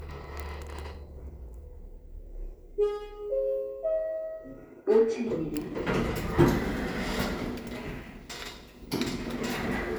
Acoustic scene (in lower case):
elevator